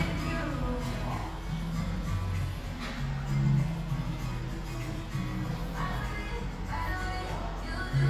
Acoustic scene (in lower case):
cafe